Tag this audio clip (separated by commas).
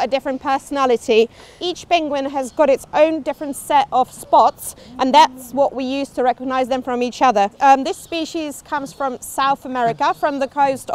penguins braying